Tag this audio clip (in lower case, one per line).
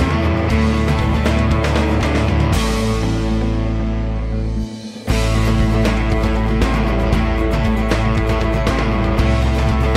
music